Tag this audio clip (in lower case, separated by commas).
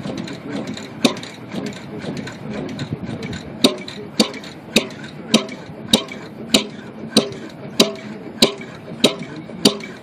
heavy engine (low frequency)